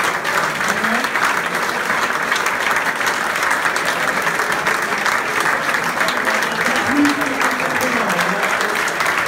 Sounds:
people clapping

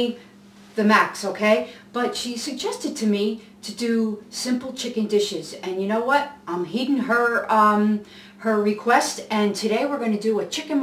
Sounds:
Speech

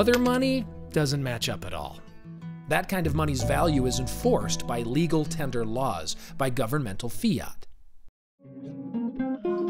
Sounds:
Speech, Music

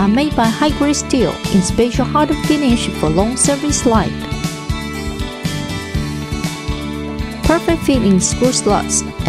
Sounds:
Speech, Music

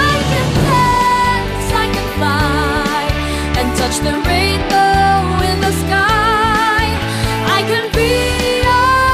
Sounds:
Pop music

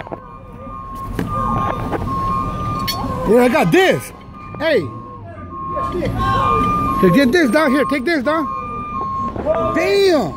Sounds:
Speech

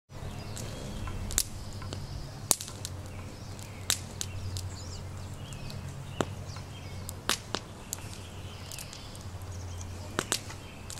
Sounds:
outside, rural or natural

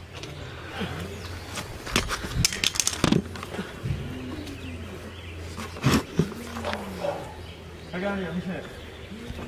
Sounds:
Bird

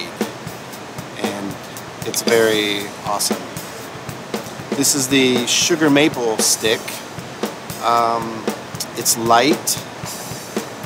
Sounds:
Percussion, Speech, Music

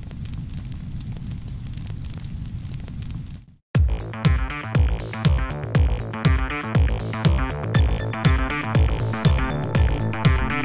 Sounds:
Music

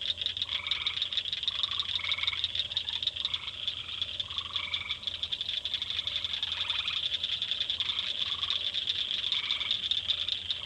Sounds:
Frog

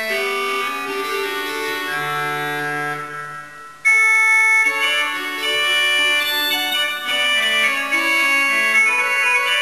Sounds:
Organ, Music

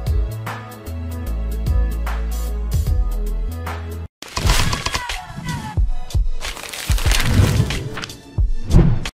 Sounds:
Music

